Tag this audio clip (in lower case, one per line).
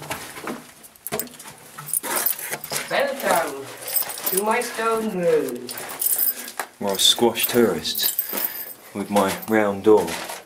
speech